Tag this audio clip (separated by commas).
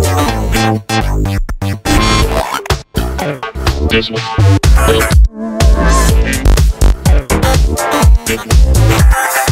Sampler, House music, Music